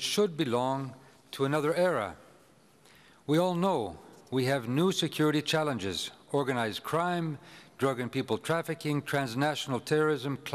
A man speaks quietly